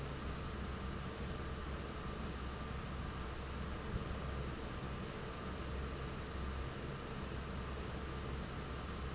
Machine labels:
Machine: fan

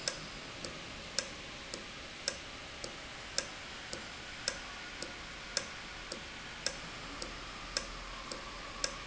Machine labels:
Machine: valve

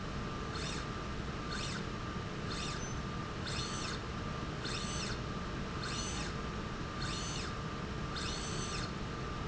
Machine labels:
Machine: slide rail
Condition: normal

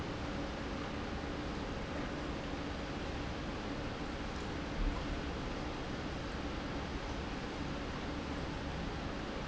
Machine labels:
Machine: pump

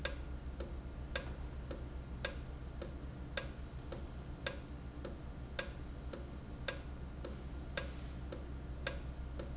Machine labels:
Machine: valve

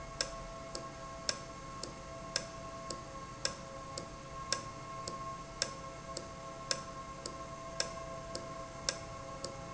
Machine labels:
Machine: valve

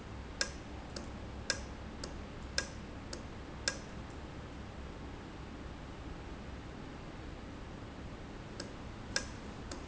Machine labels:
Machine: valve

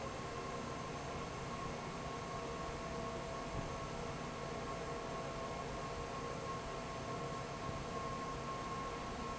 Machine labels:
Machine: fan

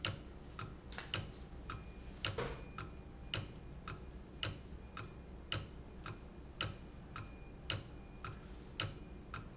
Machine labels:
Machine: valve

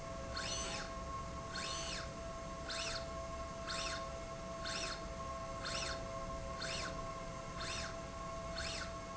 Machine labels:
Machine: slide rail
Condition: normal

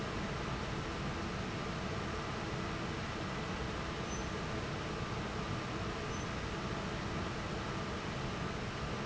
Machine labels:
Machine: fan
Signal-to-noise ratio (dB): -6 dB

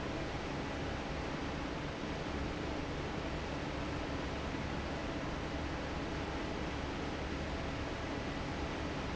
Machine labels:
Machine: fan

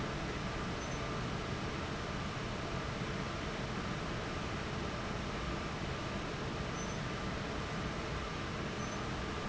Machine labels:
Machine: fan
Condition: abnormal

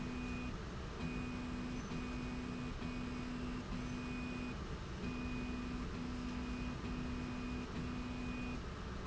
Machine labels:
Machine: slide rail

